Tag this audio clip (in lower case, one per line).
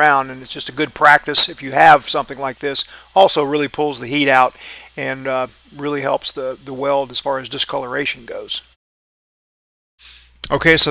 arc welding